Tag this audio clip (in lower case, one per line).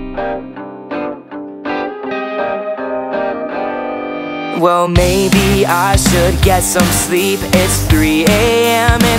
music
singing